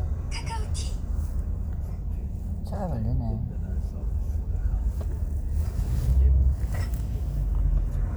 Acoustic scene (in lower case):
car